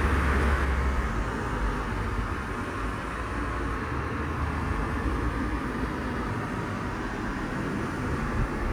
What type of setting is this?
street